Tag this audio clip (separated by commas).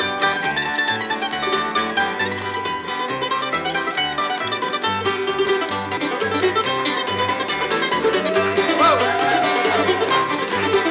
Pizzicato, Cello